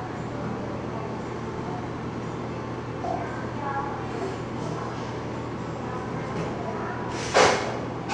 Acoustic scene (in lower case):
cafe